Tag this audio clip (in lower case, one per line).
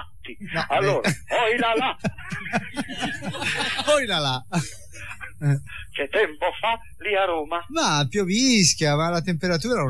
speech